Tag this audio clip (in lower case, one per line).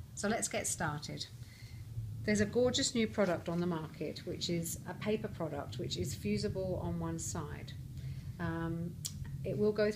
speech